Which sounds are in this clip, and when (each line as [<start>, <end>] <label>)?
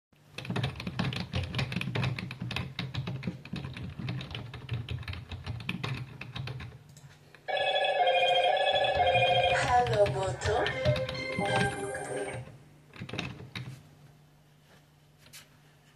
[0.36, 6.75] keyboard typing
[7.48, 12.51] phone ringing
[12.94, 13.82] keyboard typing